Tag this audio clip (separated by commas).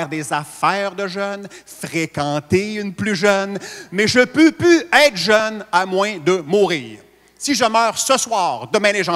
Speech